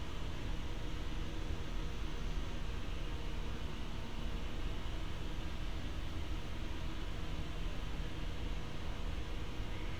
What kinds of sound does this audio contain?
engine of unclear size